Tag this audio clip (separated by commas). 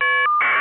Telephone, Alarm